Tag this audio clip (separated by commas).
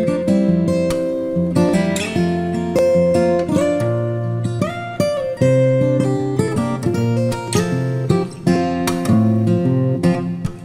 Music, Strum, Musical instrument, Guitar, Plucked string instrument